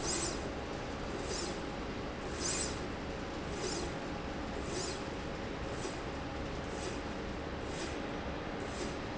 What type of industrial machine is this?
slide rail